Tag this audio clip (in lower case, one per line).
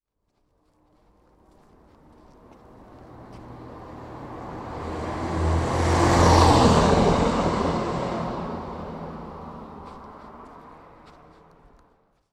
car passing by
vehicle
motor vehicle (road)
car